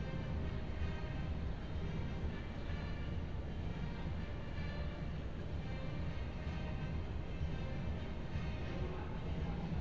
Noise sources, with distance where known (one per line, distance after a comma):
music from an unclear source